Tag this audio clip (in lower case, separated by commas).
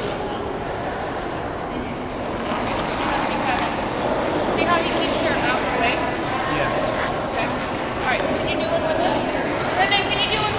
inside a large room or hall, speech